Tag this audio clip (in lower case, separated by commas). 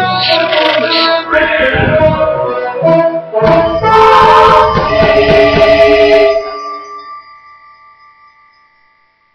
music